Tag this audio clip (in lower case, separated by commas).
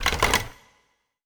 alarm, telephone